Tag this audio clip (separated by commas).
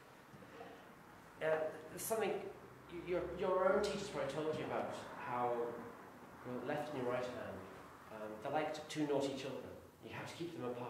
Speech